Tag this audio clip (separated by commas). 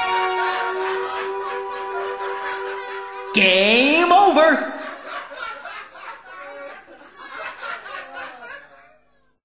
Speech